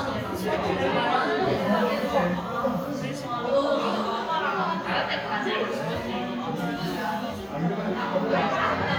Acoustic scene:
crowded indoor space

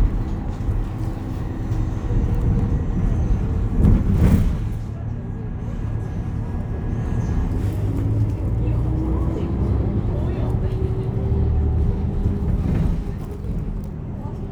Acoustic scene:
bus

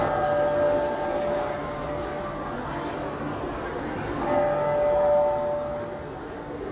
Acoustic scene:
crowded indoor space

